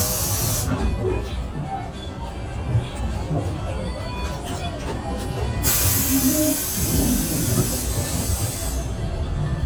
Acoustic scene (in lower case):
bus